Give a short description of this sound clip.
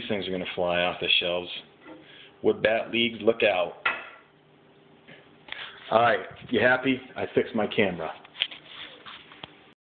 A man talks loudly